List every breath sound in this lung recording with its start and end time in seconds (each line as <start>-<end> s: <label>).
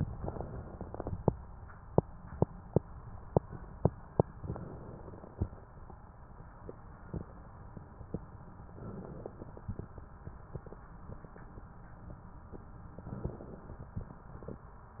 4.36-5.72 s: inhalation
8.66-9.94 s: inhalation
12.99-14.02 s: inhalation